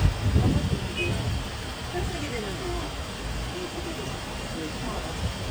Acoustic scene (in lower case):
street